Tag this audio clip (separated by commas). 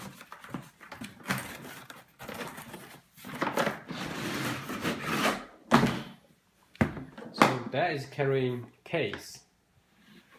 Speech